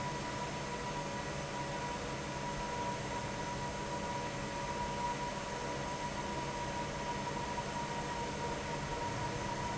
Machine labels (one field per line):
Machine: fan